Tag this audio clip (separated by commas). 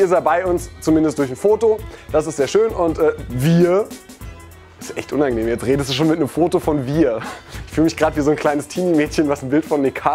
Music, Speech